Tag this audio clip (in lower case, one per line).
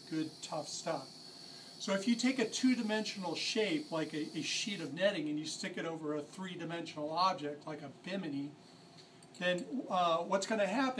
speech